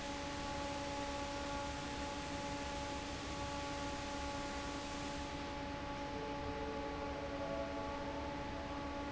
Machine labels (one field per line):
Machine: fan